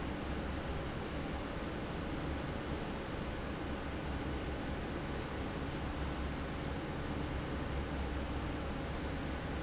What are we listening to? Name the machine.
fan